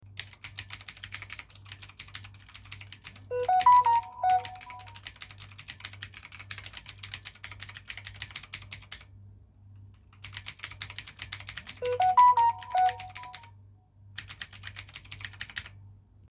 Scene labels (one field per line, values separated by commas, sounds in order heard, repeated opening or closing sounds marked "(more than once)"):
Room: bedroom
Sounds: keyboard typing, phone ringing